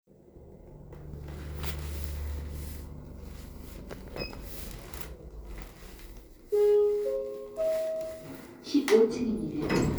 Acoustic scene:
elevator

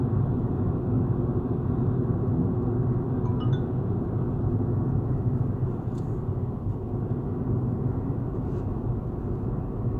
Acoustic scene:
car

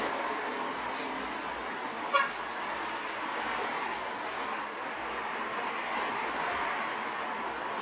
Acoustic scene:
street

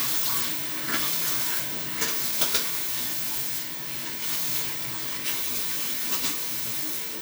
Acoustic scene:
restroom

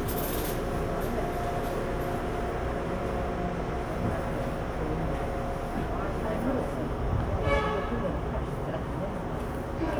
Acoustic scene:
subway train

